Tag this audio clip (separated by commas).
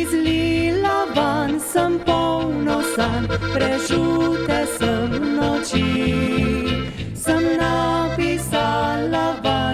Accordion